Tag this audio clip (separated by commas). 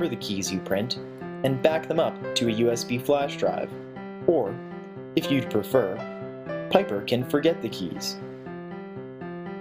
Music, Speech